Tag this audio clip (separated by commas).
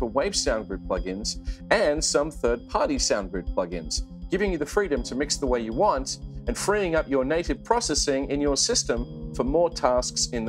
Speech, Music